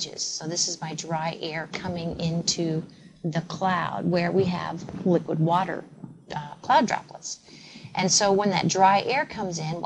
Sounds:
Speech, inside a small room

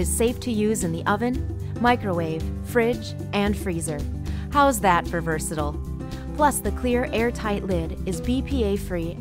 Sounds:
Music, Speech

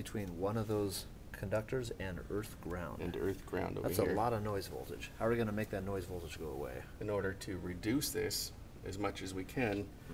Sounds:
Speech

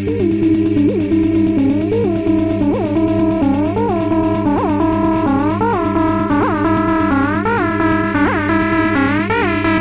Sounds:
House music, Electronica, Electronic music, Music

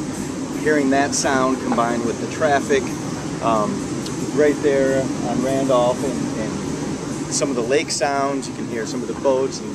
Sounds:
Speech

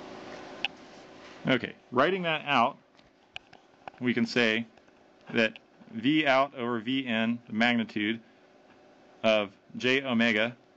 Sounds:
inside a small room, Speech

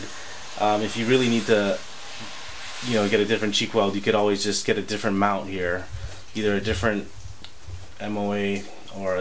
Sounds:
inside a small room, Speech

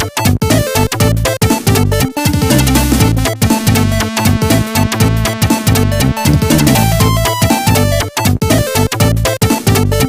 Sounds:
Music, Soundtrack music

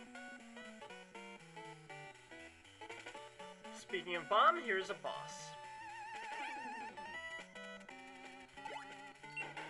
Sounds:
Speech

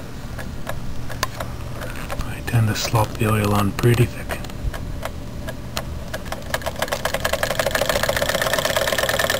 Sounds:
Engine, Speech

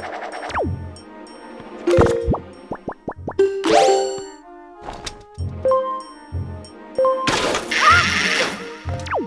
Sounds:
Music

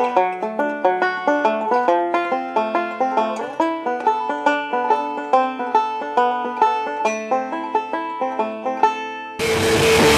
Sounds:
Musical instrument, Drum, Drum kit, Music

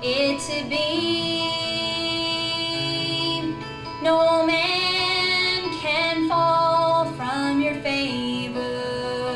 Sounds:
Music, Female singing

